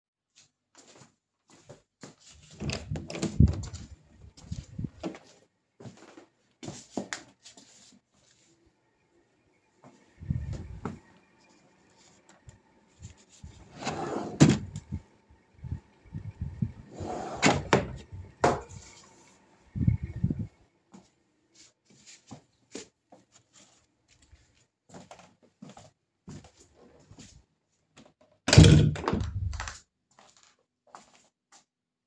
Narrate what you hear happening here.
I have opened a bedroom door, I have then walked over to a drawer in the bedroom, opened it, I got some stuff, then I have closed the drawer, walked out of the bedroom into the living room and I have closed the door of the bedroom, then I walked away.